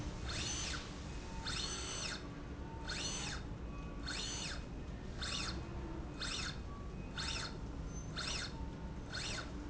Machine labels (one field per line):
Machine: slide rail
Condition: normal